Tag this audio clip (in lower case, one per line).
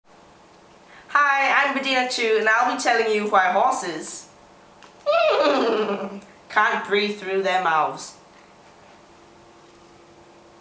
speech